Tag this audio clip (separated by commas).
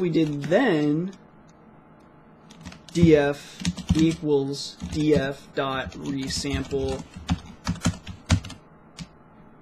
Speech, Computer keyboard